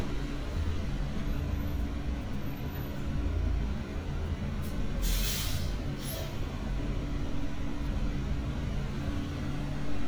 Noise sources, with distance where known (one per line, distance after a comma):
large-sounding engine